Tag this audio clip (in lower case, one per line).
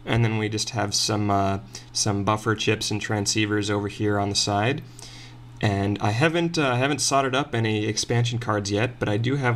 speech